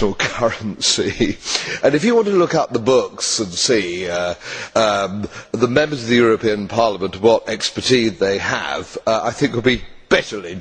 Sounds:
speech

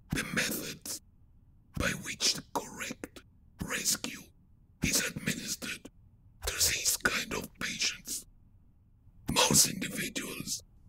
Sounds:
speech

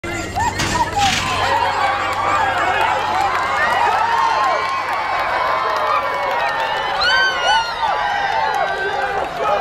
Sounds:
animal
dog
speech

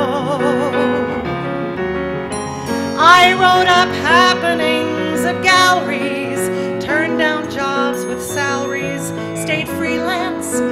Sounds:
singing
music

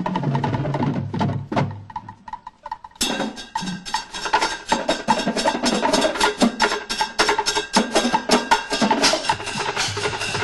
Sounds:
outside, rural or natural
music

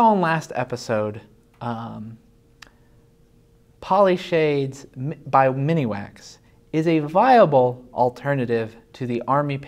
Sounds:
speech

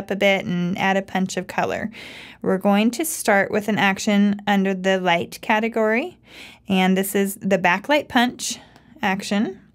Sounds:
speech

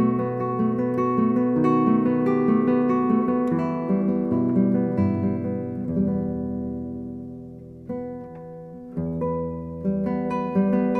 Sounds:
acoustic guitar
musical instrument
music
guitar
plucked string instrument
strum

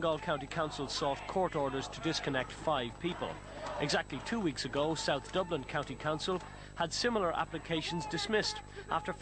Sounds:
speech

